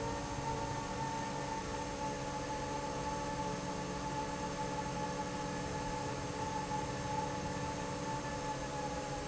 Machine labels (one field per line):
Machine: fan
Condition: normal